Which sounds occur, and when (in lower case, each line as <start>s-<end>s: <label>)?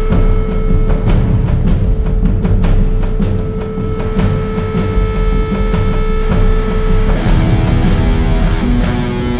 0.0s-9.3s: music